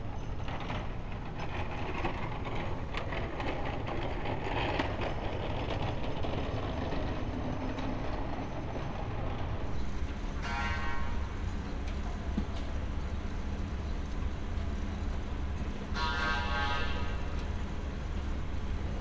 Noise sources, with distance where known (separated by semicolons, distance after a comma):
non-machinery impact